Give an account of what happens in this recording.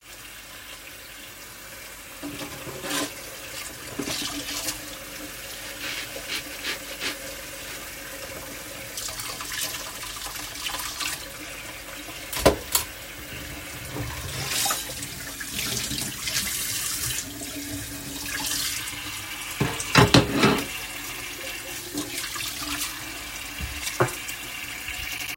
I turned on the tap and placed dishes into the sink while water was running.